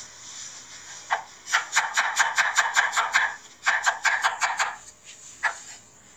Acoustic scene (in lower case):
kitchen